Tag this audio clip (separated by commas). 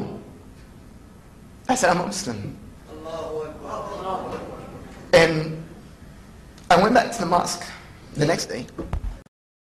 man speaking, Speech